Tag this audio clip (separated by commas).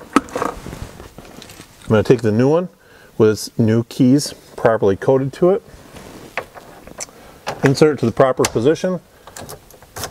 Speech